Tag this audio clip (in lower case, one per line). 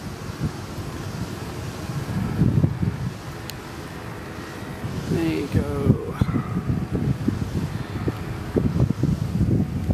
wind
wind noise (microphone)